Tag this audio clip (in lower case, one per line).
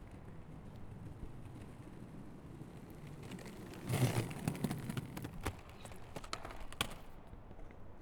skateboard
vehicle